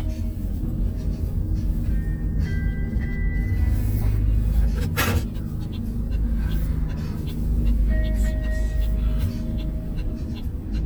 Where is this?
in a car